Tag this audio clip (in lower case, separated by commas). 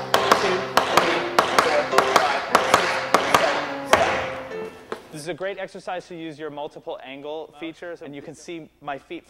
tap, music, speech